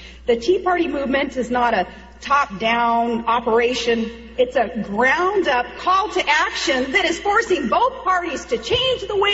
A woman giving a speech on a microphone